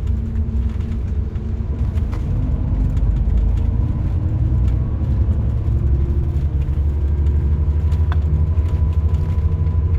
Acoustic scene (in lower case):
car